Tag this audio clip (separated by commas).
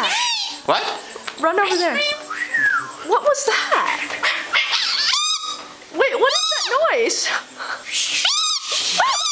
Bird, Giggle, Domestic animals, Speech